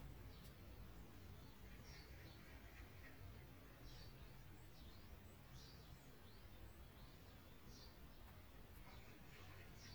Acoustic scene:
park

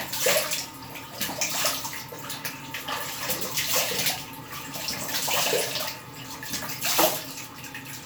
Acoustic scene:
restroom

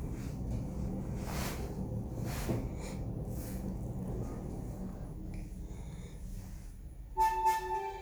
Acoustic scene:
elevator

